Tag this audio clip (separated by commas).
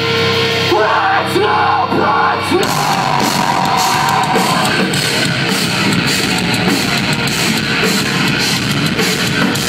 Music